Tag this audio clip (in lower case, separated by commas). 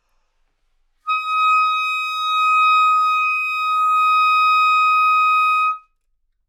music, musical instrument, woodwind instrument